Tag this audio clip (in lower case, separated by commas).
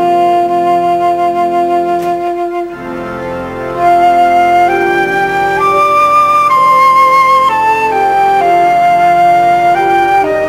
playing flute, woodwind instrument, flute